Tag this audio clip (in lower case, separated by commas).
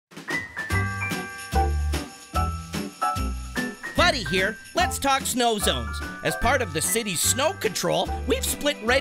jingle bell